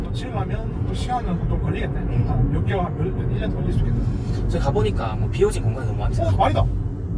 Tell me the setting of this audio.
car